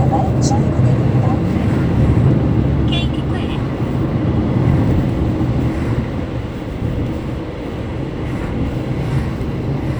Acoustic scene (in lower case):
car